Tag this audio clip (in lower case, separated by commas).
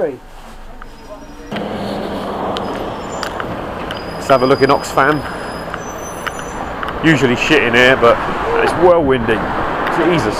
outside, urban or man-made, speech